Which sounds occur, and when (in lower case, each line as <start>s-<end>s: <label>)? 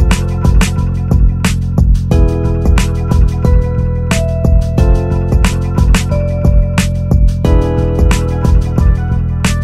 0.0s-9.6s: music